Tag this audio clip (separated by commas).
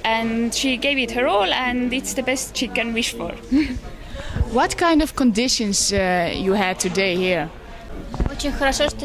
Speech